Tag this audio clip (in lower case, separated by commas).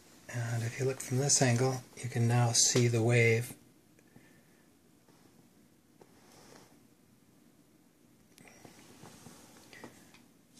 speech